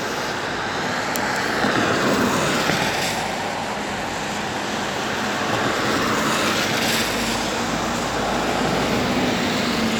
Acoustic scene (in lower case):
street